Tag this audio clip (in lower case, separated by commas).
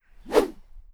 whoosh